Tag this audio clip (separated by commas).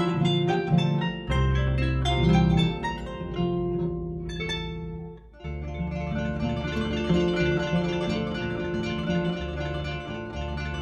Music, playing harp, Plucked string instrument, Musical instrument, Harp